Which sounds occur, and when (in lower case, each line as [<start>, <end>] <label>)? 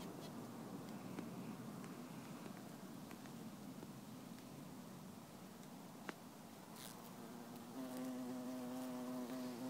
[0.00, 0.07] housefly
[0.00, 9.65] wind
[0.19, 0.28] housefly
[0.83, 0.91] tick
[1.12, 1.22] generic impact sounds
[1.78, 1.88] generic impact sounds
[2.21, 2.61] generic impact sounds
[3.08, 3.27] generic impact sounds
[3.78, 3.89] generic impact sounds
[4.33, 4.42] tick
[5.58, 5.65] tick
[6.03, 6.16] generic impact sounds
[6.73, 7.02] generic impact sounds
[6.97, 9.65] buzz
[7.92, 8.04] generic impact sounds
[8.69, 8.93] surface contact
[9.24, 9.34] generic impact sounds